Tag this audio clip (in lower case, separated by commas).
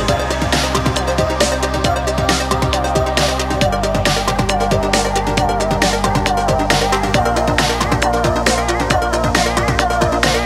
drum and bass